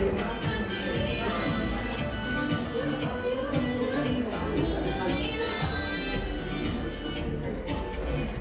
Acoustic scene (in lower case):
cafe